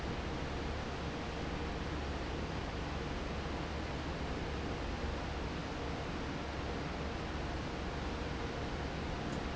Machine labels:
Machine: fan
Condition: normal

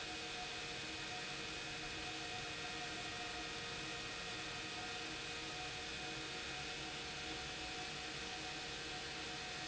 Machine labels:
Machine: pump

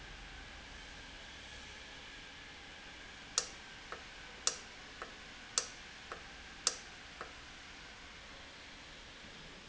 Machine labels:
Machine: valve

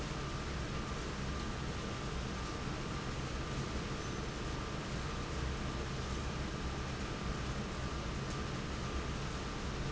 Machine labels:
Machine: fan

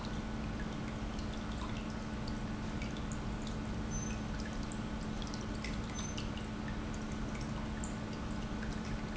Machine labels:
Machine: pump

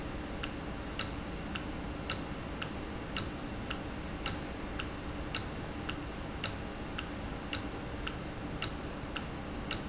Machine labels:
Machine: valve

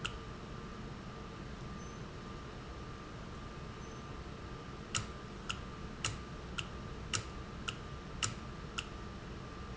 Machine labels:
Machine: valve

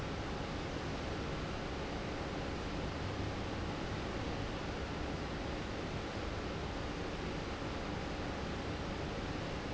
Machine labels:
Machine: fan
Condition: abnormal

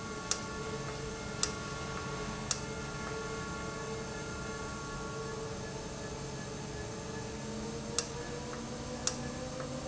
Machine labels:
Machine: valve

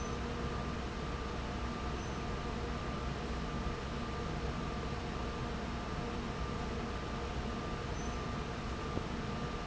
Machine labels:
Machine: fan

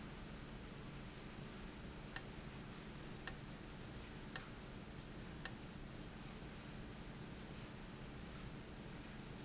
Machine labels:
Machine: valve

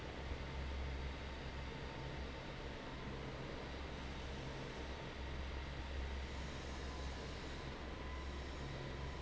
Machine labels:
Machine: fan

